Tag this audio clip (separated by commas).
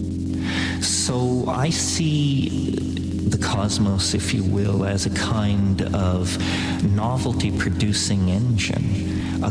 Music, Speech